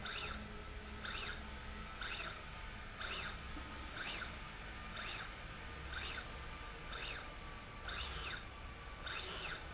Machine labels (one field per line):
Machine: slide rail